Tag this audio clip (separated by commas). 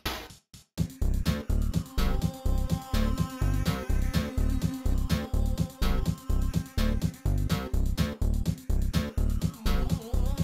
Music, Background music